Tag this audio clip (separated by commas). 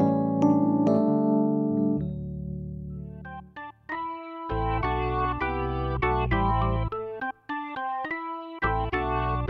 Music